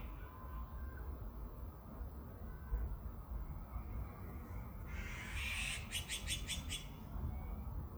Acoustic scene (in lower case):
park